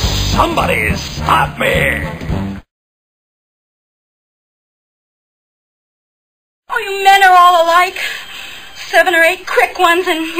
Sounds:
Speech, Silence, Music

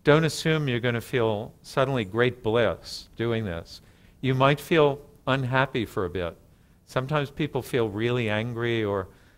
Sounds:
Speech

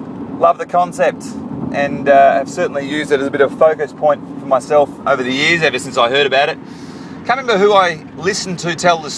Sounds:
Speech

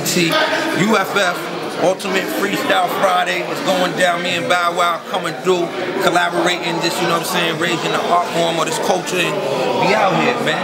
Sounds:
Speech

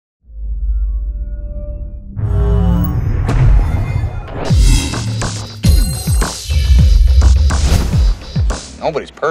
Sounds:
Music, Speech

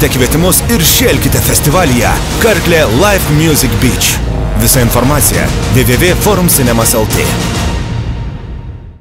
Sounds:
Music, Speech, Soundtrack music

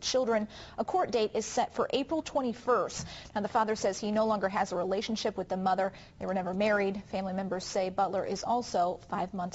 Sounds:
inside a small room, Speech

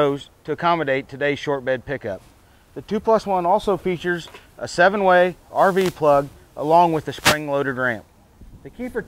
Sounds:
Speech

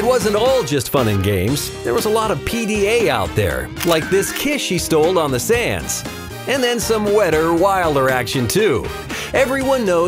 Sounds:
Speech, Music

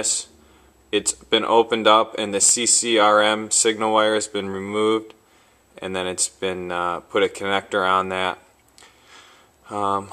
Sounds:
Speech

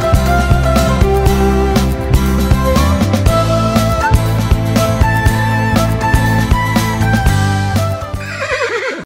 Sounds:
Horse, Music

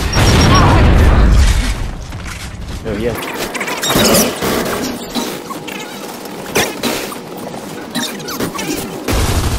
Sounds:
Speech

